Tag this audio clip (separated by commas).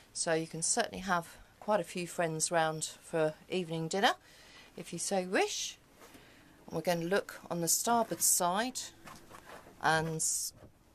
Speech